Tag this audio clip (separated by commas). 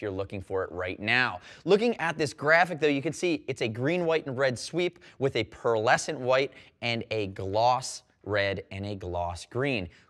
Speech